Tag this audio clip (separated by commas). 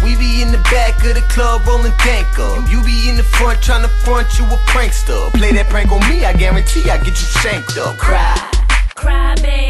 Music